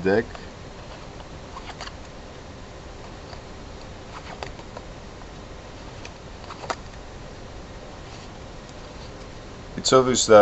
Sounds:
speech

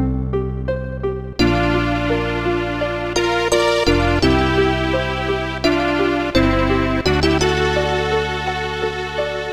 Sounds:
music

